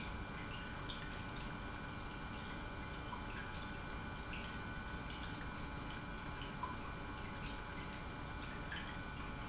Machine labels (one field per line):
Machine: pump